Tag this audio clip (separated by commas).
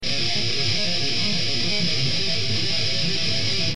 Music, Guitar, Musical instrument, Plucked string instrument